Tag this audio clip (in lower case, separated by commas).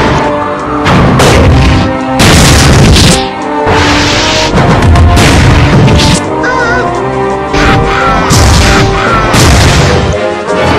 music